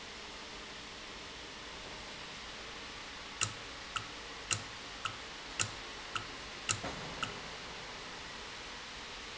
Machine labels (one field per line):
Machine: valve